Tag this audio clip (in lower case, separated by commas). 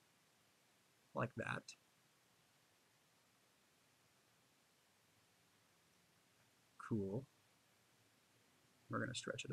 speech, monologue